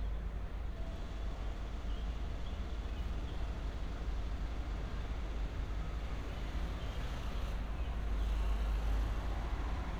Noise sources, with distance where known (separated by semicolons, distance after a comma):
engine of unclear size, far